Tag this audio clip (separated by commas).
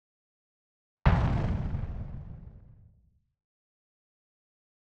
Explosion